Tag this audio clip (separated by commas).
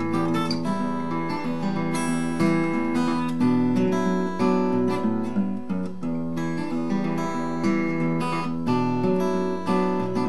Music